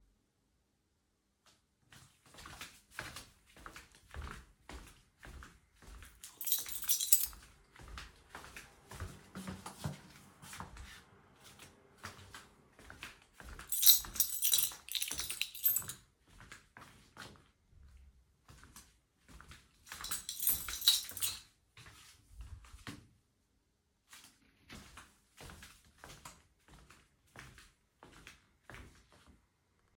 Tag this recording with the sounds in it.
footsteps, keys